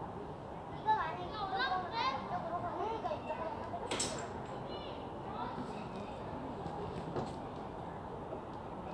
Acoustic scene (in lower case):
residential area